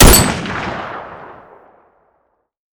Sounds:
explosion
gunfire

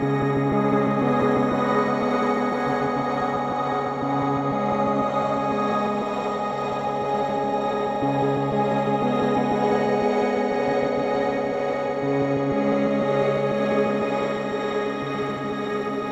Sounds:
keyboard (musical)
musical instrument
piano
music

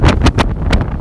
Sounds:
wind

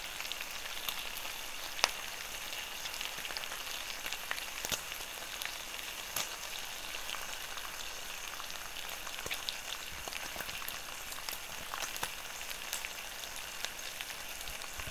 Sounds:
domestic sounds
frying (food)

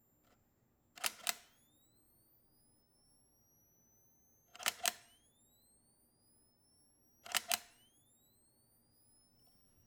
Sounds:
mechanisms
camera

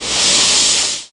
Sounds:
fire

